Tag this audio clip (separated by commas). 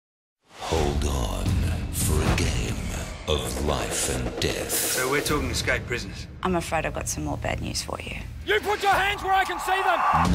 woman speaking